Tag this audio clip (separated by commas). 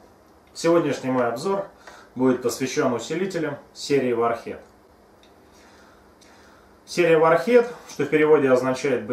Speech